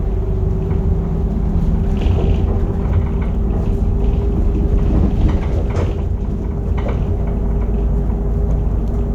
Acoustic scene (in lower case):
bus